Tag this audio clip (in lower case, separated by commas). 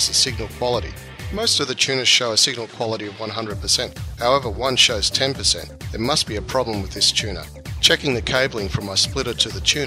speech, music